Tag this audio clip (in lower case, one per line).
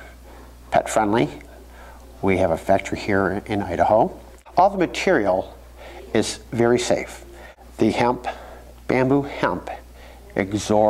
speech